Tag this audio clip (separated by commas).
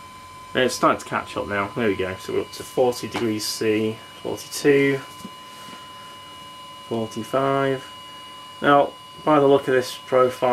inside a small room, Speech